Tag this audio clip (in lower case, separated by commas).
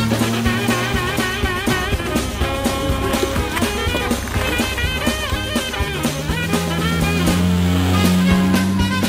skidding, car passing by, motor vehicle (road), car, vehicle, music